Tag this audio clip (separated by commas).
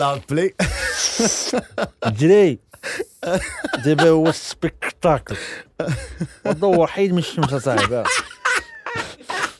Speech